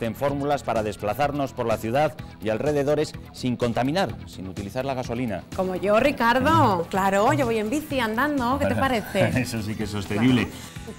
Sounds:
Speech, Music

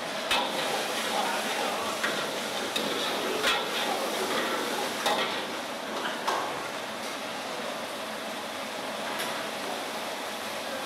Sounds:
Speech, inside a small room

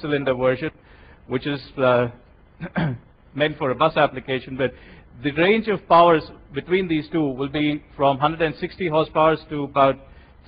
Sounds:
Speech

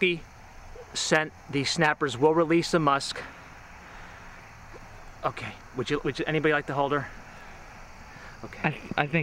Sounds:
people finger snapping

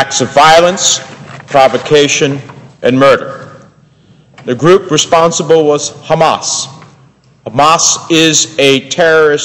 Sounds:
man speaking, Narration, Speech

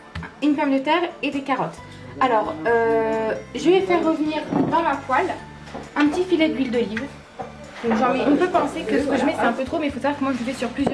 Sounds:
Music, Speech

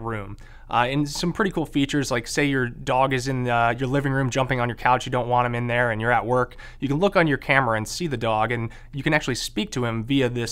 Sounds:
Speech

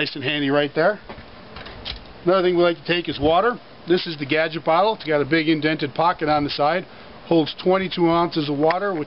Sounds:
Speech

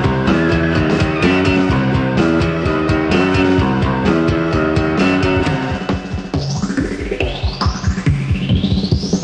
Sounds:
Music

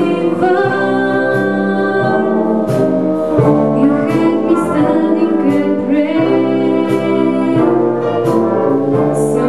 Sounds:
Brass instrument, Trumpet, Orchestra, Trombone

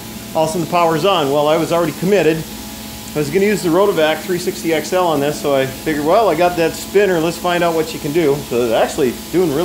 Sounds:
Speech

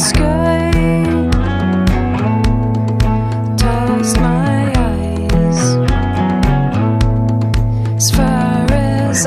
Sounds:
Music

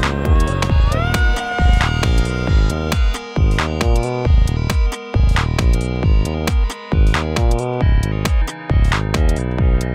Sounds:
Synthesizer

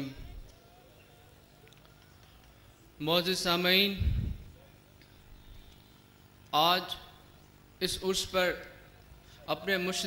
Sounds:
Narration, Speech, man speaking

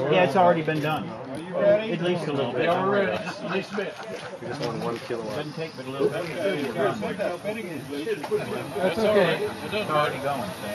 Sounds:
Speech

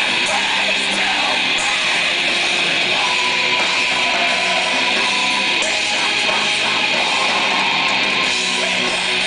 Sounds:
Music, Electronic music, Techno

